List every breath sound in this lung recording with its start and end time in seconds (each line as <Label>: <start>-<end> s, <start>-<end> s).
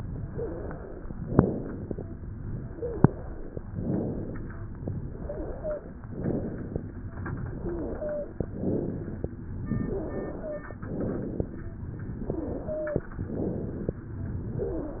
Inhalation: 0.00-1.06 s, 2.50-3.57 s, 4.93-6.00 s, 7.29-8.35 s, 9.64-10.70 s, 12.07-13.13 s, 14.13-15.00 s
Exhalation: 1.29-2.02 s, 3.74-4.57 s, 6.13-6.96 s, 8.44-9.27 s, 10.79-11.62 s, 13.21-14.03 s
Wheeze: 0.23-0.50 s, 2.60-3.10 s, 5.16-5.86 s, 7.53-8.34 s, 12.62-13.13 s, 14.53-15.00 s